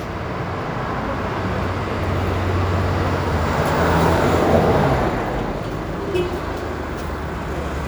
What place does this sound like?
residential area